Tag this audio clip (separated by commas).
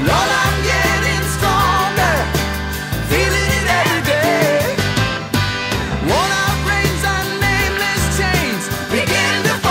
Music